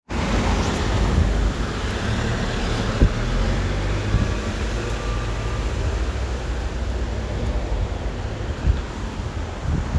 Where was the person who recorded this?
on a street